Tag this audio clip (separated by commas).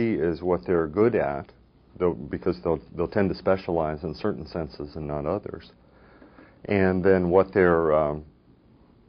Speech